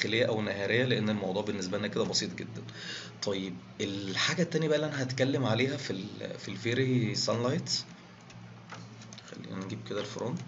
A man is speaking and typing